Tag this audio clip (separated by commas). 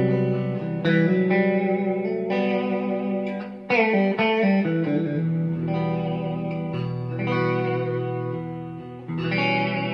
Guitar, Plucked string instrument, Electric guitar, Musical instrument, Music